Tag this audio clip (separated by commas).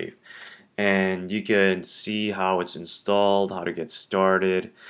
Speech